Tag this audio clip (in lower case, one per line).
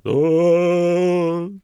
human voice
singing
male singing